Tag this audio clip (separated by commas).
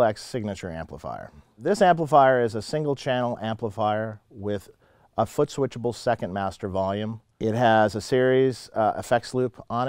Speech